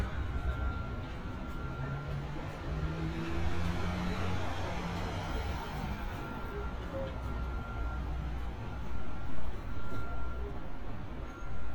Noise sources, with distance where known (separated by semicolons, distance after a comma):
medium-sounding engine